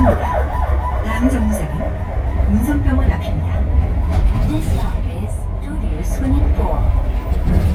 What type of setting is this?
bus